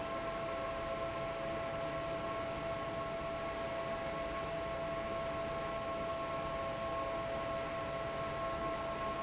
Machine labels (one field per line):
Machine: fan